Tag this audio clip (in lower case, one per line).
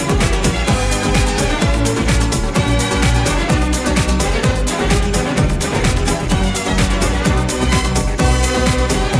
soundtrack music
music
dance music